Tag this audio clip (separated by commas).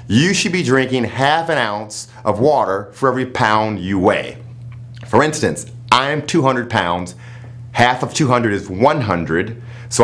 Speech